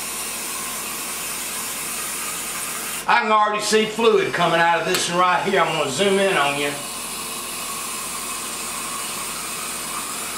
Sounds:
speech

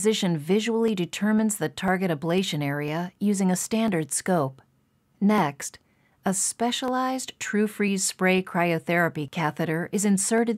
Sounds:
speech

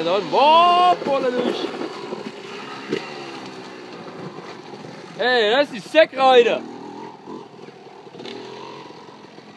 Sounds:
speech
field recording

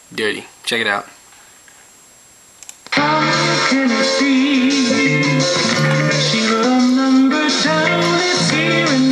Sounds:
music
speech

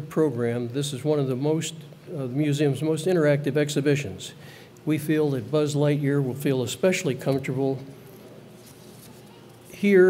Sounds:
speech

